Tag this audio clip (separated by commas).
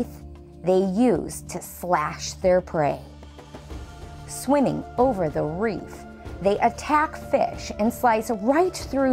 Speech, Music